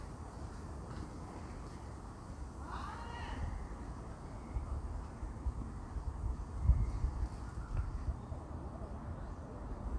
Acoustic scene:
park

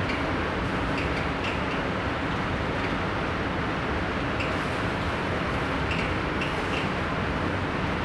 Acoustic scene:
subway station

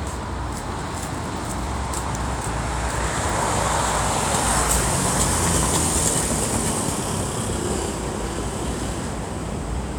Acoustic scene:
street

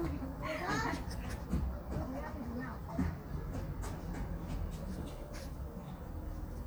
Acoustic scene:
residential area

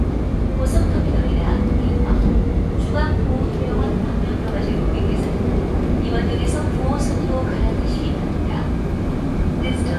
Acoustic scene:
subway train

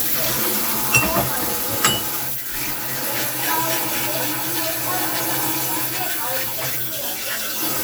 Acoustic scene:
kitchen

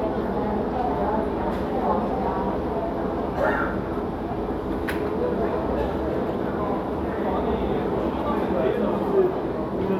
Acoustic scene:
crowded indoor space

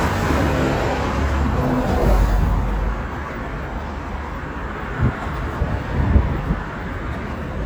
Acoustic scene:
street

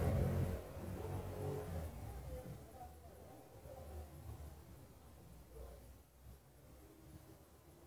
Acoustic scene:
residential area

